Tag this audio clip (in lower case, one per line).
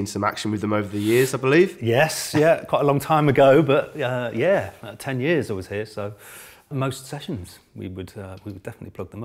speech